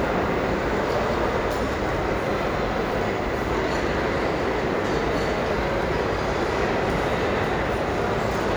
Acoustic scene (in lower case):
crowded indoor space